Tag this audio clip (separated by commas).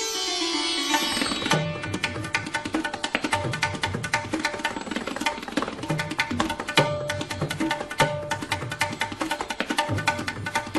playing sitar